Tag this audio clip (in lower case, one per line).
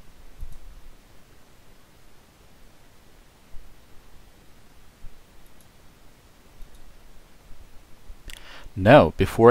speech